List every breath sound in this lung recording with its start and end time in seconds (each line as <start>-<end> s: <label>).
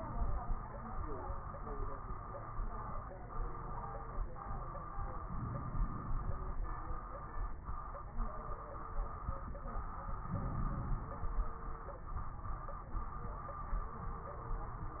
5.24-6.37 s: inhalation
10.25-11.37 s: inhalation